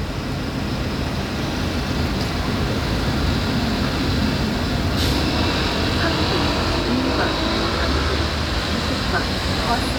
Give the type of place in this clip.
street